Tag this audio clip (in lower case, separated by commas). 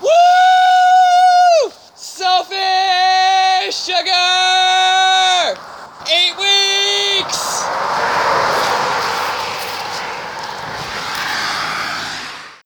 human voice, yell, shout